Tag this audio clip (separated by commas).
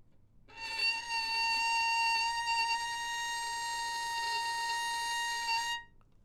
Music, Bowed string instrument, Musical instrument